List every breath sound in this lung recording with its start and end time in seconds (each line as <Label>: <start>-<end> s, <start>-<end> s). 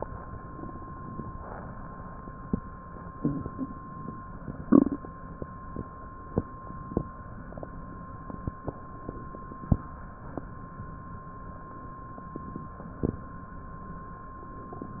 Inhalation: 0.47-1.39 s
Exhalation: 1.39-2.38 s